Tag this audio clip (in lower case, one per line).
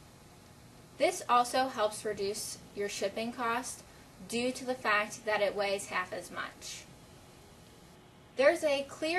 speech